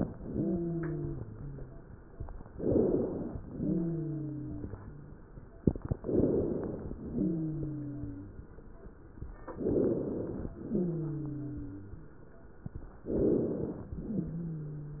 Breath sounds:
Inhalation: 2.52-3.36 s, 5.98-6.95 s, 9.58-10.55 s, 13.04-14.00 s
Exhalation: 3.47-5.25 s, 7.13-8.51 s, 10.62-12.00 s, 14.06-15.00 s
Wheeze: 0.13-1.80 s, 3.47-5.25 s, 7.13-8.51 s, 10.62-12.00 s, 14.06-15.00 s

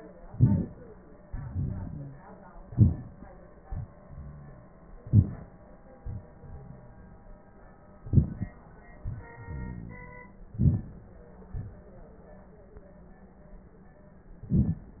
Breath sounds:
Inhalation: 0.23-0.65 s, 2.62-3.30 s, 5.03-5.75 s, 8.03-8.50 s, 10.51-11.18 s
Exhalation: 1.29-2.17 s, 3.63-4.74 s, 6.00-7.38 s, 8.98-10.28 s
Wheeze: 1.90-2.20 s

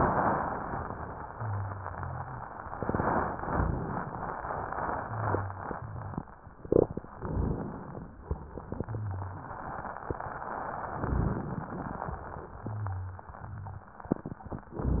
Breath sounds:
Inhalation: 3.34-4.43 s, 7.19-8.15 s, 11.04-12.01 s
Rhonchi: 1.36-2.48 s, 5.07-6.26 s, 8.85-9.44 s, 12.59-13.22 s, 13.39-13.83 s
Crackles: 3.34-4.43 s, 7.19-8.15 s, 11.04-12.01 s

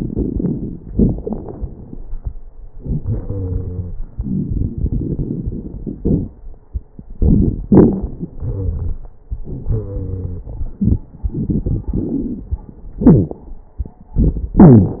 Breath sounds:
Inhalation: 0.00-0.80 s, 2.70-3.94 s, 7.17-8.28 s, 9.47-11.02 s
Exhalation: 0.90-2.11 s, 4.17-6.34 s, 8.36-9.04 s, 11.23-12.55 s
Wheeze: 3.03-3.94 s, 8.36-9.04 s, 9.47-10.50 s, 13.04-13.37 s, 14.62-15.00 s
Crackles: 0.00-0.80 s, 0.90-2.11 s, 4.17-6.34 s, 7.17-8.28 s, 11.23-12.55 s

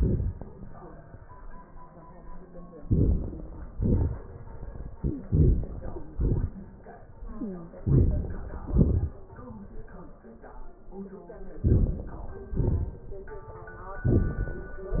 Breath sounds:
Inhalation: 2.79-3.72 s, 5.26-6.07 s, 7.81-8.68 s, 11.56-12.52 s, 13.99-15.00 s
Exhalation: 3.77-4.93 s, 6.08-7.19 s, 8.69-9.83 s, 12.52-13.63 s
Wheeze: 4.97-5.25 s, 7.21-7.84 s
Crackles: 2.80-3.74 s, 5.26-6.07 s, 7.79-8.68 s, 11.56-12.52 s, 13.99-15.00 s

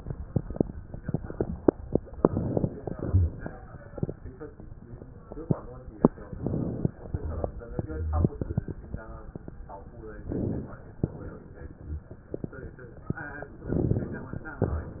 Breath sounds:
Inhalation: 2.20-2.92 s, 6.38-6.95 s, 10.15-10.80 s, 13.76-14.40 s
Exhalation: 2.92-3.51 s, 6.96-7.61 s, 11.06-11.71 s
Rhonchi: 3.04-3.40 s, 7.89-8.35 s

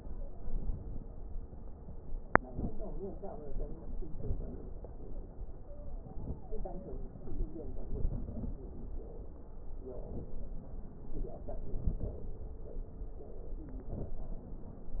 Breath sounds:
Inhalation: 2.36-3.22 s, 3.80-4.85 s, 6.07-6.47 s, 7.46-8.61 s, 11.60-12.49 s, 13.79-14.38 s
Stridor: 5.53-6.98 s
Crackles: 2.36-3.22 s, 3.80-4.85 s, 7.46-8.61 s, 11.60-12.49 s, 13.79-14.38 s

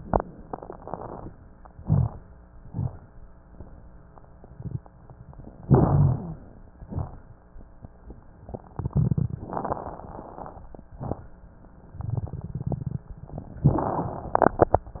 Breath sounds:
Inhalation: 1.67-2.24 s, 5.64-6.45 s
Exhalation: 2.62-3.04 s, 6.83-7.17 s
Rhonchi: 1.67-2.24 s, 5.64-6.45 s
Crackles: 2.62-3.04 s, 6.83-7.17 s

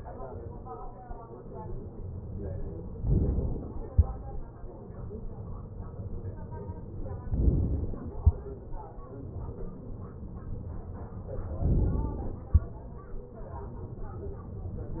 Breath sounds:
Inhalation: 2.99-4.02 s, 7.35-8.28 s, 11.63-12.57 s

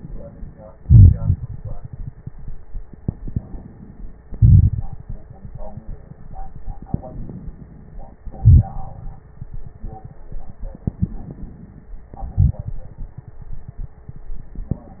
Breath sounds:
Inhalation: 3.26-4.23 s, 6.97-8.16 s, 11.02-11.99 s
Exhalation: 0.78-1.71 s, 4.24-5.04 s, 8.27-9.23 s, 12.14-12.94 s
Crackles: 0.78-1.71 s, 4.24-5.04 s, 8.27-9.23 s, 12.14-12.94 s

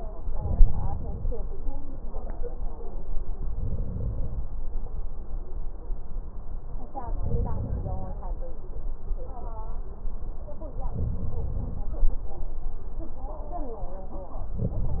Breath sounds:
Inhalation: 0.35-1.35 s, 3.50-4.49 s, 7.20-8.20 s, 10.90-11.89 s, 14.57-15.00 s
Crackles: 14.57-15.00 s

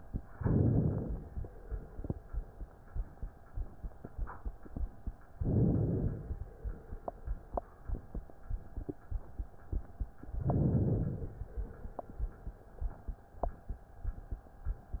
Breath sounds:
Inhalation: 0.32-1.24 s, 5.37-6.28 s, 10.47-11.39 s

